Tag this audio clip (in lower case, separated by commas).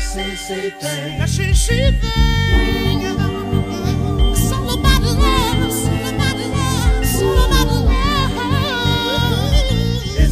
music